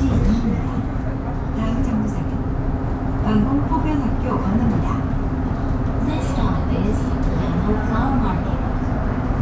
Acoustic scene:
bus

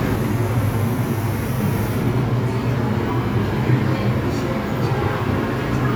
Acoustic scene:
subway station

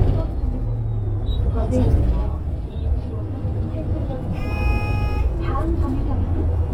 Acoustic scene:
bus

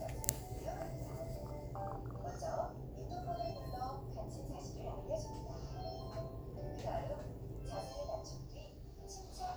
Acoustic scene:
elevator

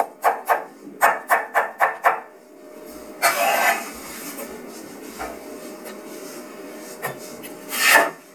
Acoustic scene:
kitchen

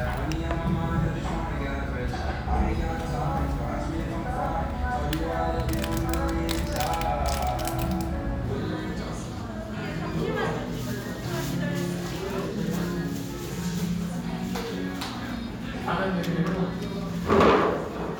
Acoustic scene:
restaurant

